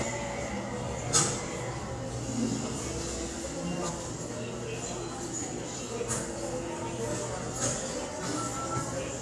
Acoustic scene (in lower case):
subway station